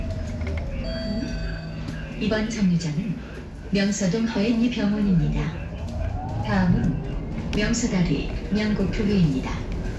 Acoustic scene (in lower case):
bus